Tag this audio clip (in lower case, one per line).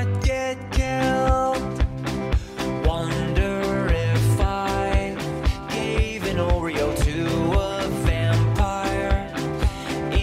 music